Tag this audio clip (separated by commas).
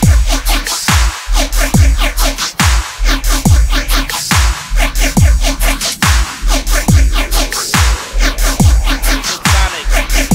Dubstep, Music